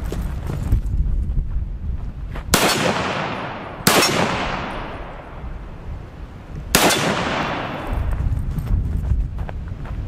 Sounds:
machine gun shooting

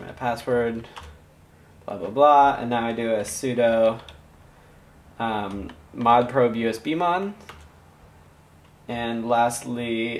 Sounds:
Speech

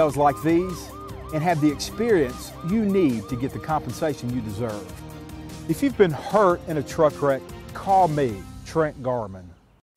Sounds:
Speech, Music

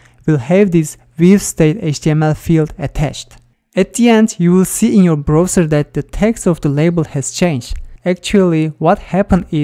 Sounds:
monologue, Speech

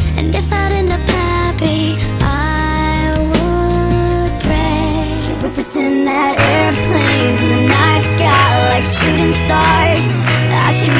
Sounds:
Music

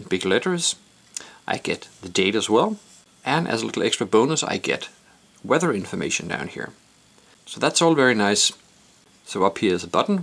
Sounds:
Speech

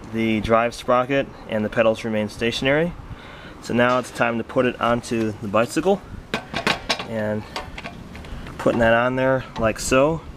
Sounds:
Speech

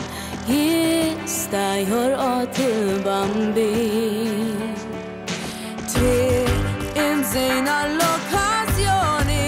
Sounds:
Music

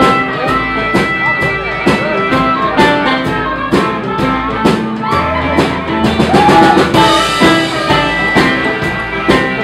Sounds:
Speech, Music

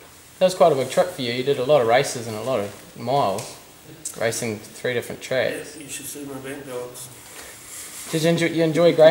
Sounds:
Speech

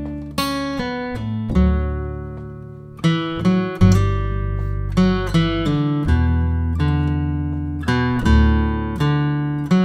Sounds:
Guitar, Music

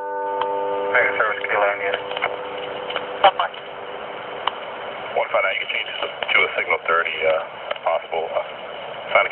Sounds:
Speech

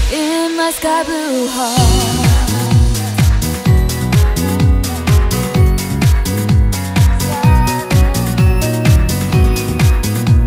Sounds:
Music

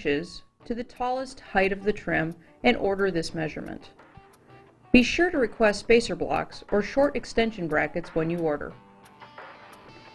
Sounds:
Music, Speech

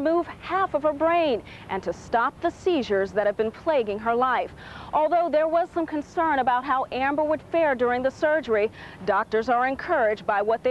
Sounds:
Speech

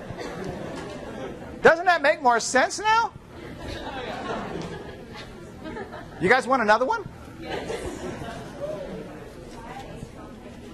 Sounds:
Speech

